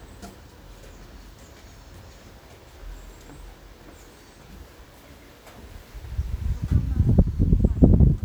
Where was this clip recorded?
in a park